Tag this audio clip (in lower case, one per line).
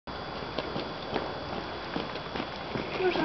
speech